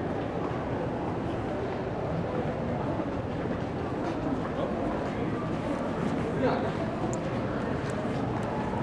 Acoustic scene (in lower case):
crowded indoor space